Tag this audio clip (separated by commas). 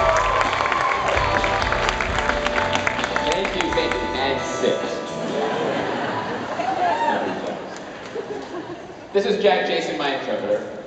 monologue, Speech, Male speech, Music